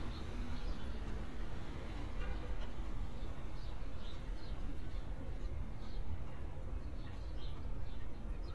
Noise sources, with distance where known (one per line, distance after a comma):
car horn, far